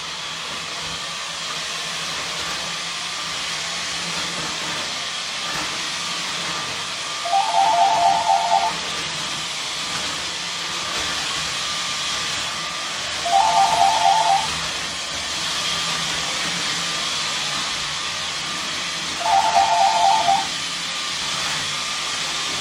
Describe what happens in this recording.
I cleaned the floor and then the phone began to ring.